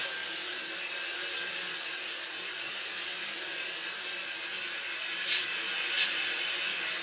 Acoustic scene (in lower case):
restroom